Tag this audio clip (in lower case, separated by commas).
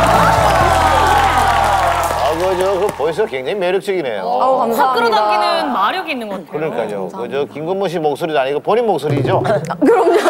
music, speech